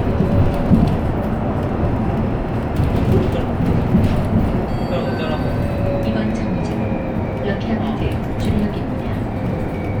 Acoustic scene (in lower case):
bus